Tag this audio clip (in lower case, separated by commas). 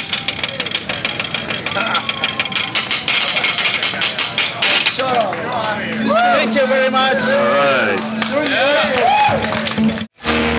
music, speech